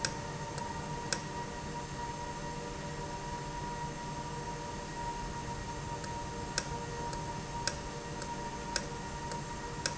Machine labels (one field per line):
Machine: valve